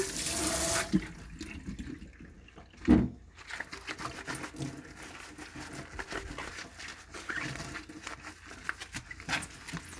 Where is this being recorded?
in a kitchen